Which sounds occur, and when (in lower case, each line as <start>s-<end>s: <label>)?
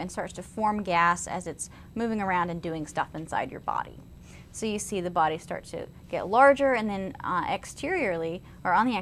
0.0s-1.7s: female speech
0.0s-9.0s: mechanisms
1.7s-1.9s: breathing
1.9s-4.0s: female speech
4.2s-4.5s: breathing
4.5s-5.9s: female speech
6.1s-8.4s: female speech
8.4s-8.6s: breathing